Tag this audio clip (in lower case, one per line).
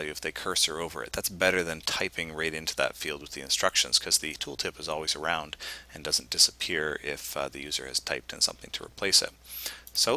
speech